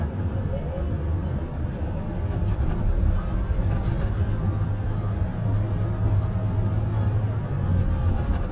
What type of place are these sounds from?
car